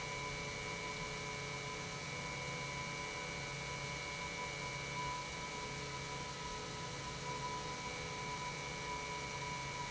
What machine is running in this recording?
pump